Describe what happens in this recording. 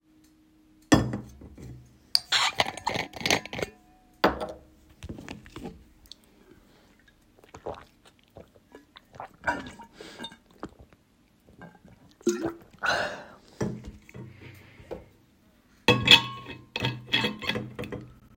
I open the tap to fill my bottle and close it after filling.